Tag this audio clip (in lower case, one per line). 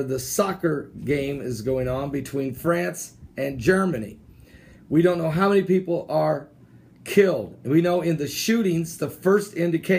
speech